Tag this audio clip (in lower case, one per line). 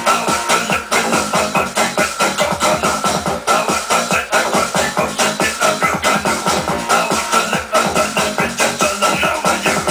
music